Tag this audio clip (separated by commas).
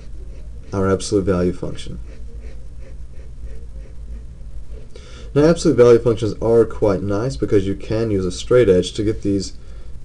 Speech, inside a small room